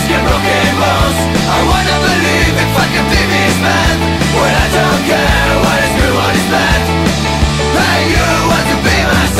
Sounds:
guitar, punk rock, drum kit, musical instrument, music, rock music, bass guitar

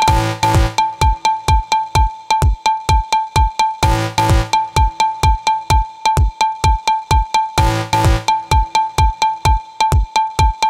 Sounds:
music

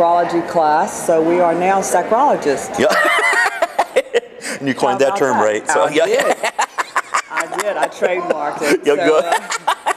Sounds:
laughter, speech

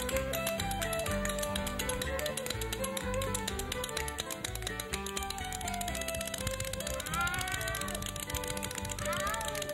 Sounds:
music

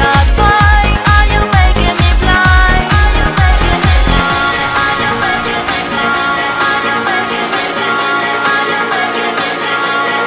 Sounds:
music

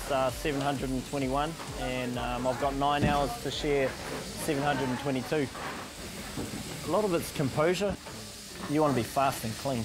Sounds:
speech

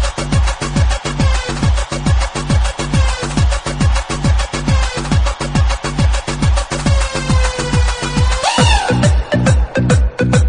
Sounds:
electronica, music

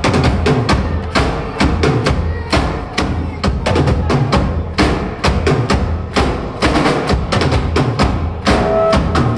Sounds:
speech, music

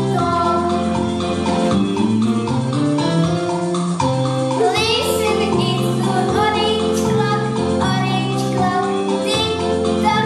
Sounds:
music, tick-tock

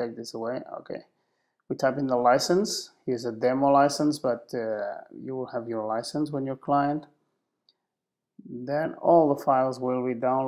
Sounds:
speech

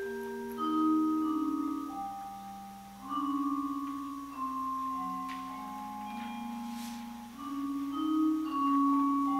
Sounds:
music, musical instrument, playing vibraphone, vibraphone

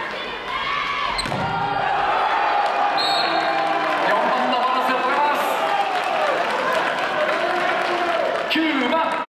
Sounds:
speech

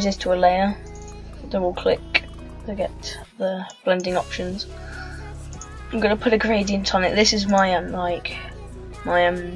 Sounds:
speech, music

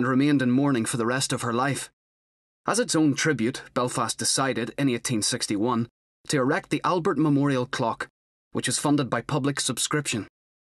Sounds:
speech

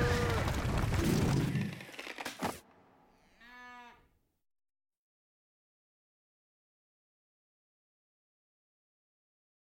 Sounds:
bovinae, livestock, moo

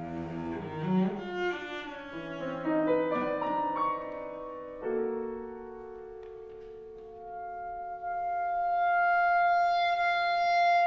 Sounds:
bowed string instrument, cello, playing cello

